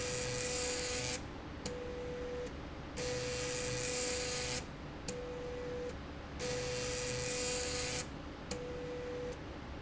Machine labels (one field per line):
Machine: slide rail